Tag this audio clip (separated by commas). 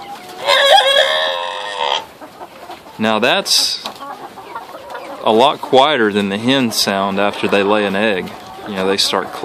Cluck, rooster, Fowl, Crowing